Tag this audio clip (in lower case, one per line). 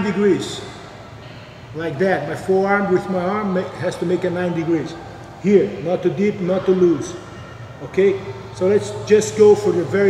speech